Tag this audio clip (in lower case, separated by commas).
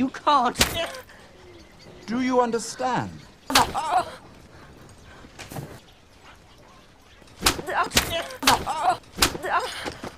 people slapping